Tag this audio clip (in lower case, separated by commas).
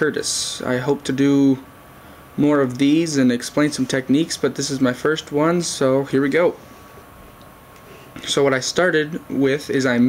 speech